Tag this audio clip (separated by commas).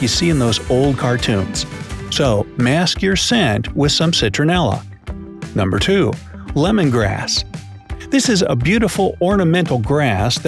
mosquito buzzing